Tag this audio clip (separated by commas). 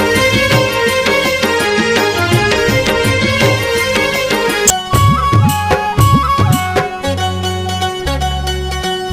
Music, Folk music